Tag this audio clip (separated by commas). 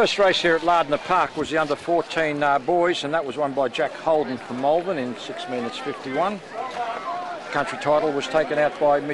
Speech, Run